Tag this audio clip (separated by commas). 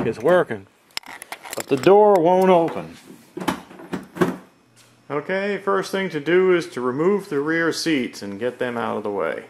Door, Speech